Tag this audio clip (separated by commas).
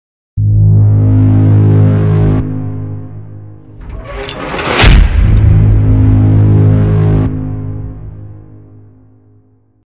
Music